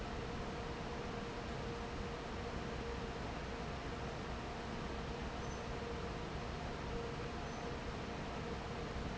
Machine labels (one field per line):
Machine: fan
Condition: normal